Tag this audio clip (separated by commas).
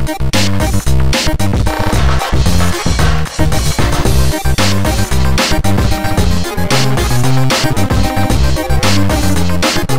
Music